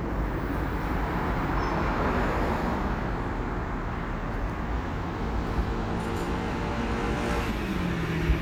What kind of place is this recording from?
street